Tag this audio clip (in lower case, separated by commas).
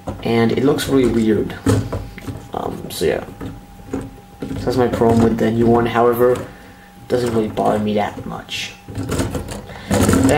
inside a small room, speech